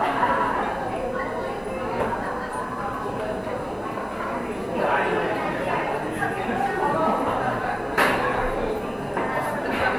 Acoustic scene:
cafe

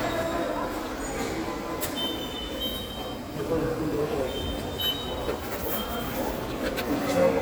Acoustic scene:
subway station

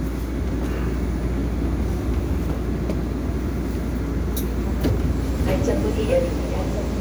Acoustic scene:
subway train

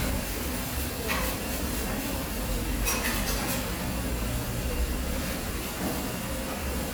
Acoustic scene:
restaurant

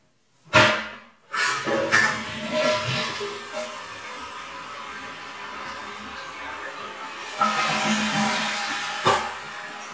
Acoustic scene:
restroom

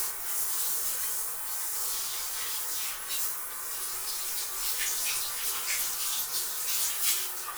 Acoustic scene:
restroom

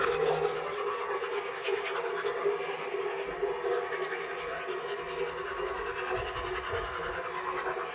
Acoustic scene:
restroom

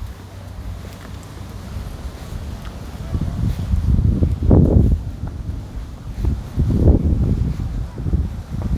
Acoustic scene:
residential area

